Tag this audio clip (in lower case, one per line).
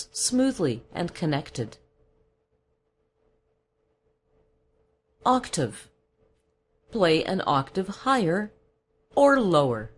narration